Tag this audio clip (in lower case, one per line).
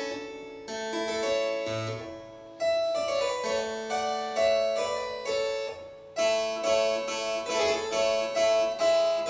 harpsichord
music